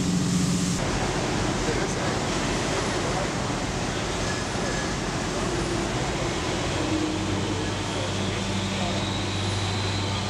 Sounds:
Speech, Vehicle, Waves

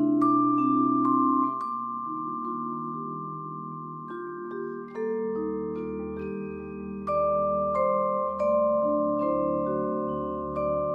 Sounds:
Marimba, Mallet percussion, Glockenspiel, playing marimba

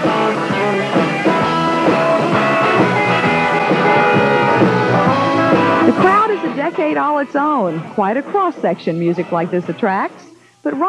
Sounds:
Speech, Music

